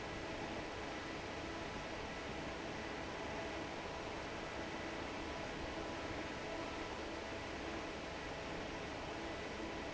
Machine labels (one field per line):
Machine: fan